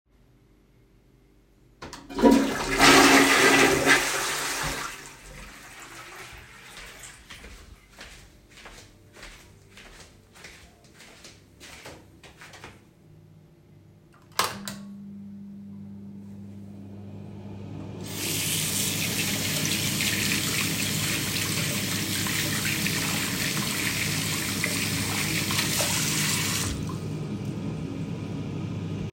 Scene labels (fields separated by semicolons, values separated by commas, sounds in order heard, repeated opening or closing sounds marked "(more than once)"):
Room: lavatory, hallway, bathroom; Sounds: toilet flushing, footsteps, light switch, running water